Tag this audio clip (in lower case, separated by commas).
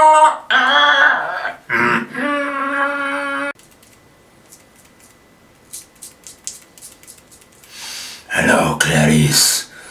electric razor, speech